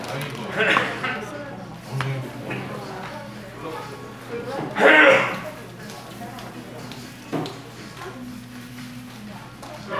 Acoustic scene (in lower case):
crowded indoor space